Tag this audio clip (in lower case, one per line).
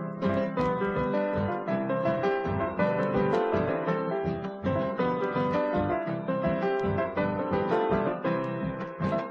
music
musical instrument
fiddle